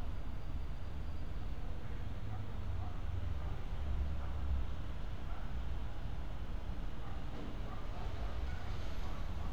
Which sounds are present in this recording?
dog barking or whining